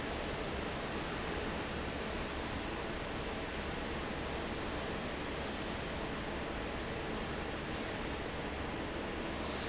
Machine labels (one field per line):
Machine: fan